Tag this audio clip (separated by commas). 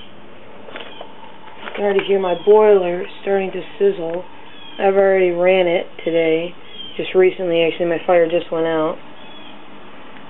Speech